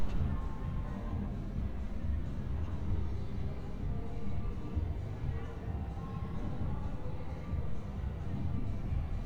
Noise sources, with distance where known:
engine of unclear size; music from an unclear source

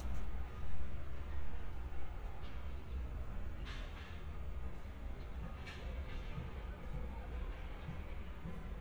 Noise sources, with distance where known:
non-machinery impact

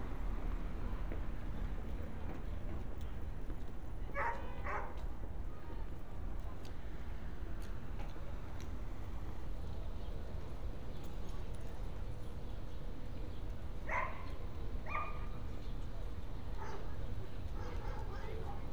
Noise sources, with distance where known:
dog barking or whining

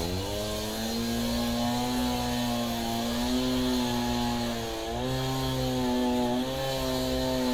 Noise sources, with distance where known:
unidentified powered saw, near

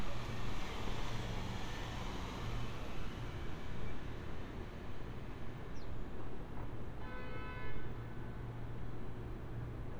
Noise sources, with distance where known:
car horn

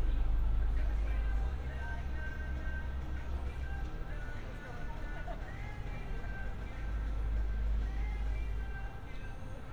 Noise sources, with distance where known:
music from a moving source; person or small group talking

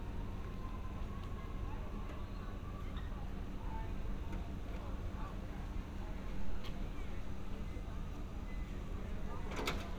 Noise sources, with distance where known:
person or small group talking, far

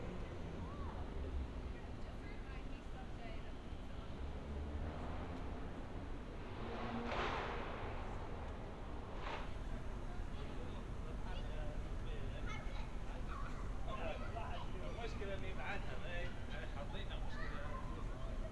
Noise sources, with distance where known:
person or small group talking

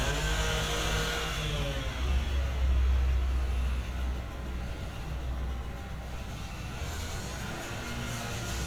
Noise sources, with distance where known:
small or medium rotating saw

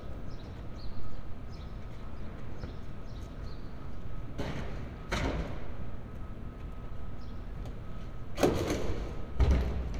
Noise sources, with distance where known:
non-machinery impact

